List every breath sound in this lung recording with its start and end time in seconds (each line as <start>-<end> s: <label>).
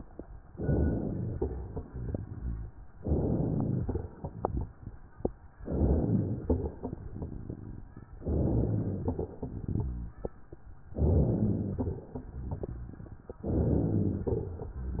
0.53-1.33 s: inhalation
1.39-2.18 s: exhalation
3.00-3.80 s: inhalation
3.83-4.63 s: exhalation
5.62-6.42 s: inhalation
6.49-7.29 s: exhalation
8.23-9.03 s: inhalation
9.11-9.91 s: exhalation
10.97-11.77 s: inhalation
11.84-12.64 s: exhalation
13.47-14.27 s: inhalation
14.31-15.00 s: exhalation